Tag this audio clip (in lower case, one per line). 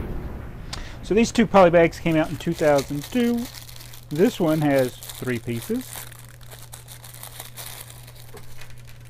crumpling
speech
inside a small room